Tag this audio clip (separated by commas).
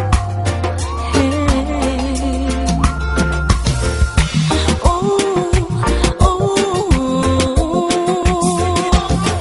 Singing, Music of Africa